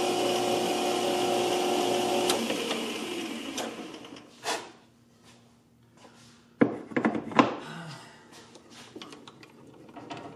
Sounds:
tools

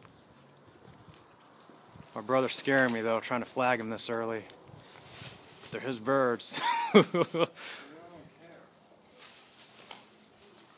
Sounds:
outside, rural or natural
speech

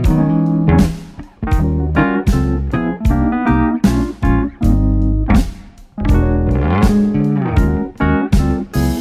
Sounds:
music

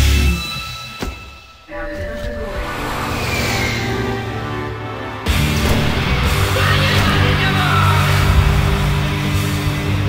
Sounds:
strum
plucked string instrument
speech
guitar
musical instrument
music
electric guitar

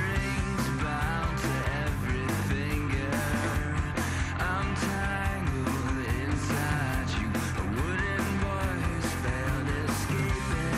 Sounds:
music

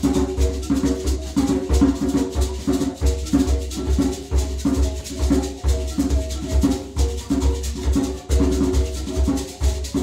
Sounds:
music

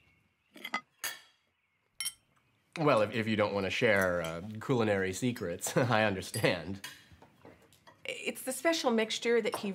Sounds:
speech

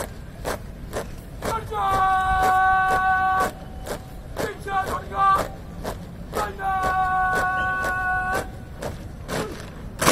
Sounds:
people marching

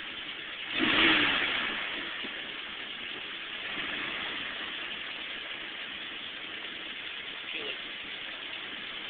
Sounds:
speech

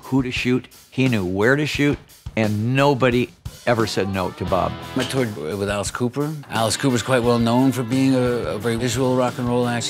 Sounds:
rock and roll
speech
music

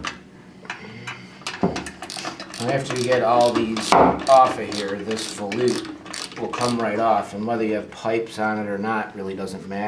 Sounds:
speech

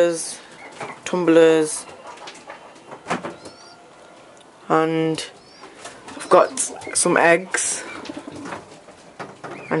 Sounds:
coo
dove
bird
tweet
bird vocalization

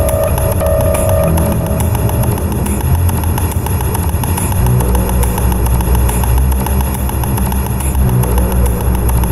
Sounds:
soundtrack music
music
sound effect

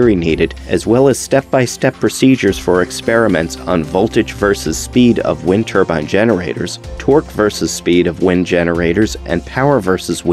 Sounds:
speech
music

